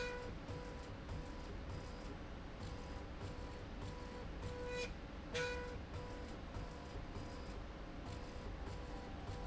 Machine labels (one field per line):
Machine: slide rail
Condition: normal